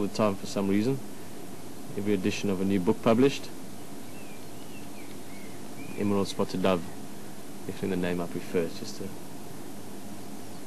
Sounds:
Speech

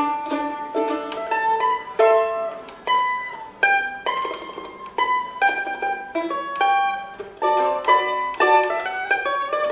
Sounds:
Pizzicato

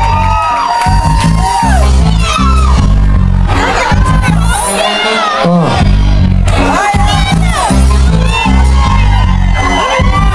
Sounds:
Music, Speech

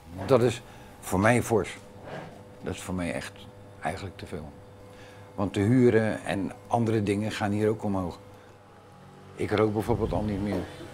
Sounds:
Speech

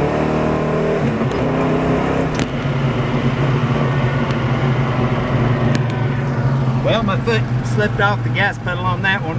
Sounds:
Vehicle, Speech, Car

